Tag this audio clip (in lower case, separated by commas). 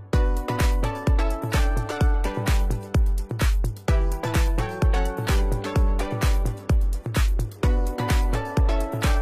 music